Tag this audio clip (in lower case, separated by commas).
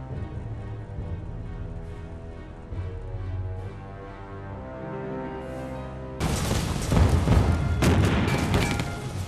gunshot, machine gun